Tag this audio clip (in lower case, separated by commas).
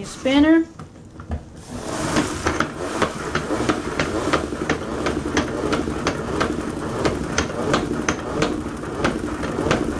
speech, inside a small room